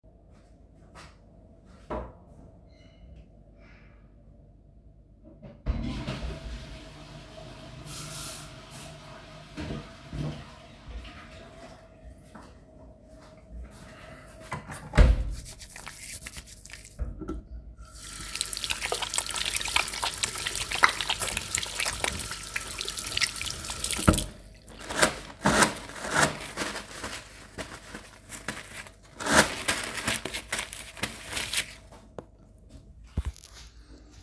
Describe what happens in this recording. I flushed the toilet, I used an air spray while the toilet flushing, walked toward the sink, I used soap dispanser then hand wipes